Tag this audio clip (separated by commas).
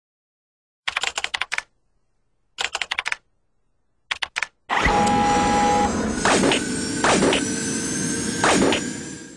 Theme music, Music